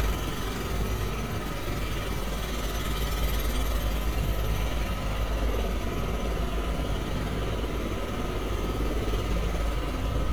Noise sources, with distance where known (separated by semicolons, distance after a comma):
jackhammer, near